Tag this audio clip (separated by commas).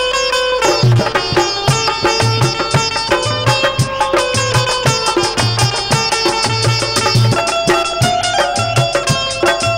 playing sitar